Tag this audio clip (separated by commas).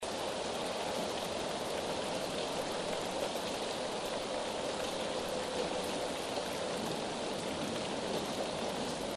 Water, Rain